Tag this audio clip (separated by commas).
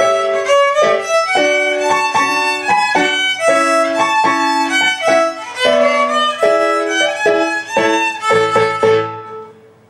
Music, fiddle, Musical instrument